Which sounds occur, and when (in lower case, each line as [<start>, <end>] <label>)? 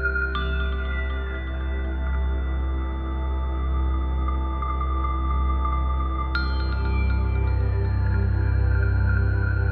[0.00, 9.71] music